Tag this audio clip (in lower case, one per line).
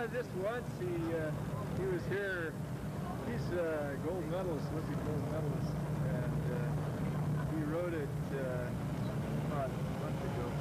speech